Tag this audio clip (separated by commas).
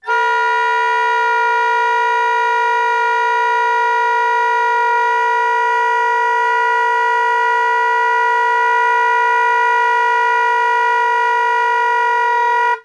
Music, Musical instrument, Wind instrument